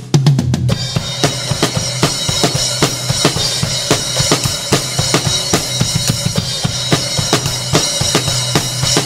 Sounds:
music, bass drum, drum kit, heavy metal, drum, hi-hat, musical instrument, snare drum

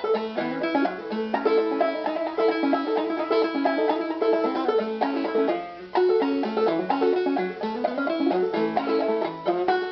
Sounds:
inside a small room, banjo, music, musical instrument, plucked string instrument, bluegrass, playing banjo

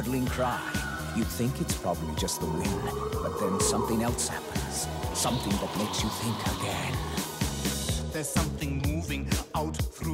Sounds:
speech, music

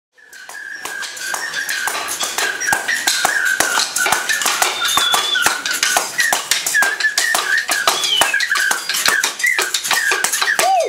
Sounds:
music, percussion

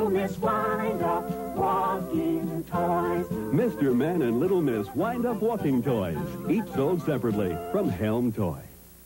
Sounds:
speech, music

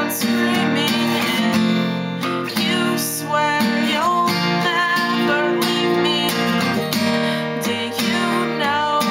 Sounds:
music, strum, singing

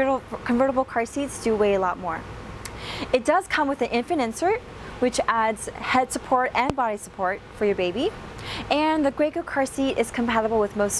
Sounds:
speech

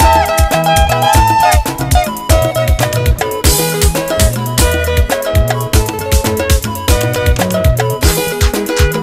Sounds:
music, music of africa

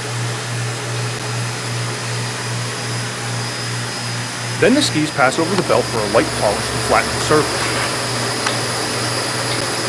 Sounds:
speech

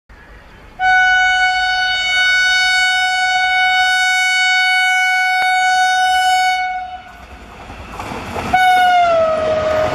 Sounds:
vehicle, metro, railroad car, train, rail transport

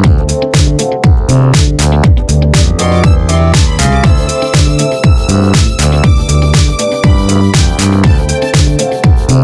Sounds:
music

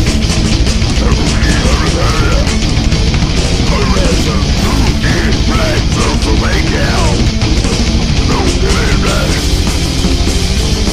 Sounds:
music, speech

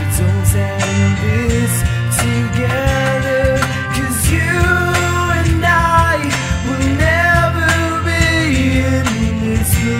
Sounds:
singing, music

